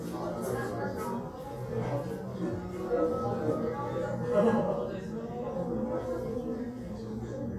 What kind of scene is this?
crowded indoor space